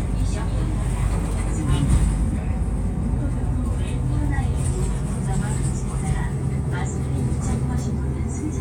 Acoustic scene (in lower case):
bus